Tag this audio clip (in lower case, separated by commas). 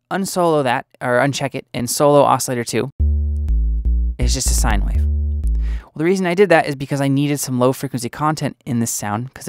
synthesizer